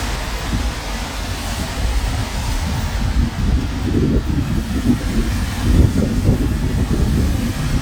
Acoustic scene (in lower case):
street